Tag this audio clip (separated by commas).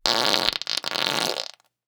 Fart